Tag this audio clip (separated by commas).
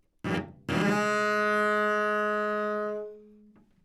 Musical instrument, Music, Bowed string instrument